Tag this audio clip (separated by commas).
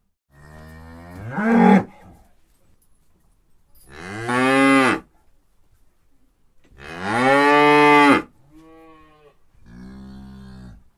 bovinae cowbell